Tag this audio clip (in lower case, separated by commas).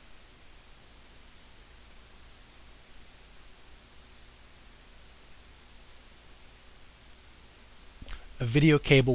speech